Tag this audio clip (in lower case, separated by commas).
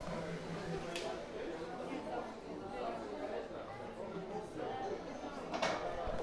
human group actions, speech, human voice, crowd, conversation